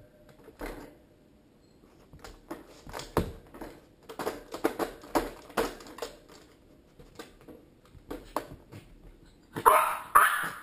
Something is being tapped on then a small dog barks sharply